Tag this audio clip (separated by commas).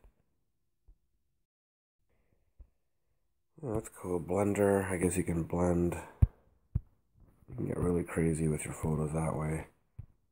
Speech